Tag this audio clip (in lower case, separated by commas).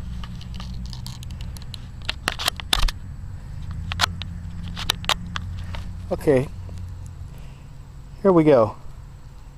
speech